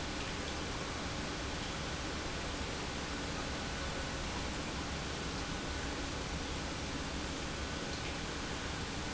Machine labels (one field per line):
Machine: pump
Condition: normal